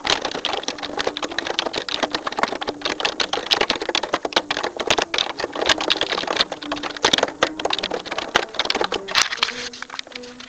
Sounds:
domestic sounds
typing

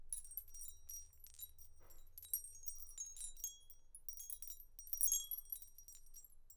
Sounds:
glass

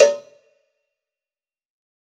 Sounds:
bell
cowbell

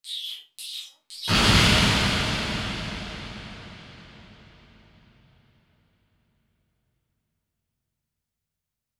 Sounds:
explosion

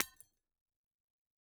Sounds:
shatter
glass

